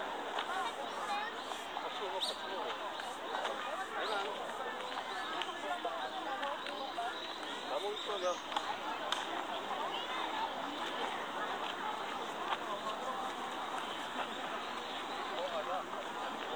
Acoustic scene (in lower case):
park